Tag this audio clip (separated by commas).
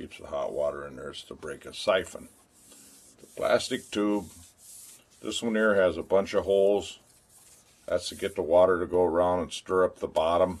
Speech